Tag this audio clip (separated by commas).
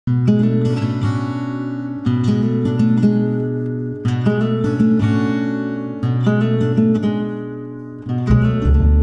Music